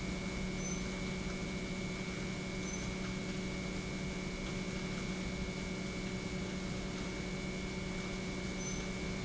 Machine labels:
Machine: pump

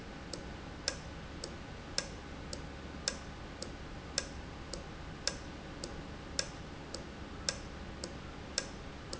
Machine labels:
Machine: valve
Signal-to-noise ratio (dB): 0 dB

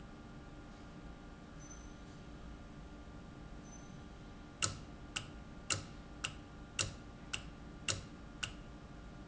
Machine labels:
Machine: valve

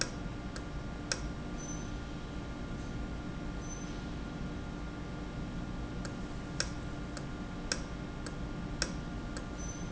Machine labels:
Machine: valve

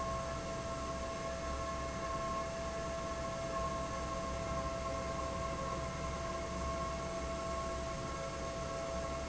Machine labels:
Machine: fan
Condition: normal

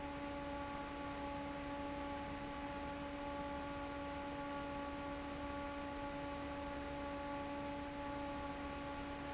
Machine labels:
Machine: fan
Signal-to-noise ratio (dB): 6 dB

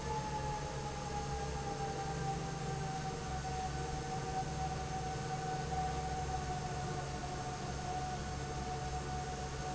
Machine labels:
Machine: fan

